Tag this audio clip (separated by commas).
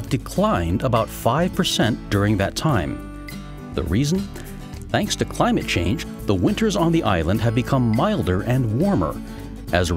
Music, Speech